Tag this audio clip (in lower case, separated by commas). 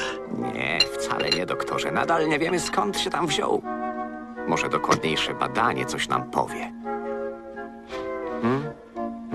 music, speech